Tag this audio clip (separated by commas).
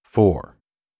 Human voice, Speech